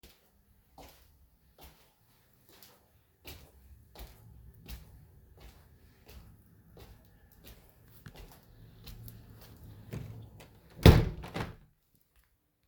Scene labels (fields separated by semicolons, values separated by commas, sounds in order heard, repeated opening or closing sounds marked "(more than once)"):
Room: bedroom; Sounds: footsteps, window